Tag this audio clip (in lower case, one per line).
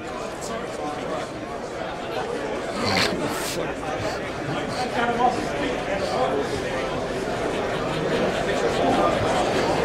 speech
animal
yip
pets
dog